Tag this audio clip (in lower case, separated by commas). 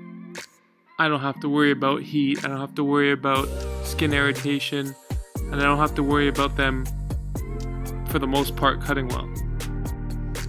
cutting hair with electric trimmers